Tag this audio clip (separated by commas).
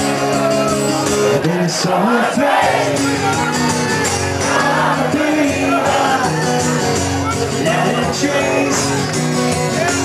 Speech, Music